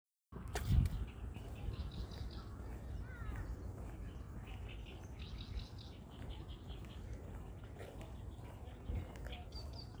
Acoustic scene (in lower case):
park